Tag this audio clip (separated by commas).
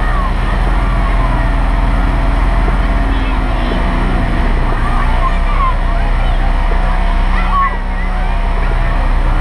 Truck, Speech, Vehicle